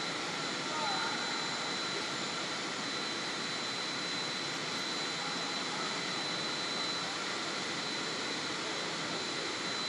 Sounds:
Vehicle

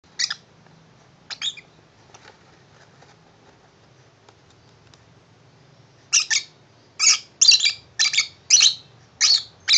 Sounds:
Domestic animals, inside a small room, Bird

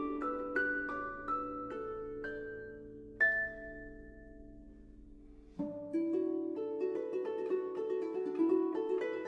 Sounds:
playing harp

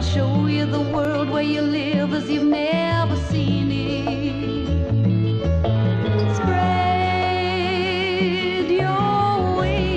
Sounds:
Music

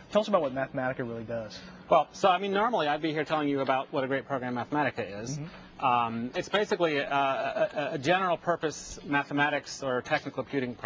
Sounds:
Speech

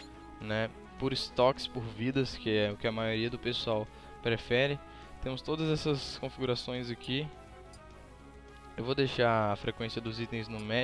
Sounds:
Music, Speech

